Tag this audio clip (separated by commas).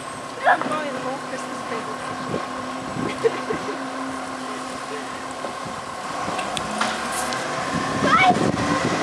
Truck, Speech, Vehicle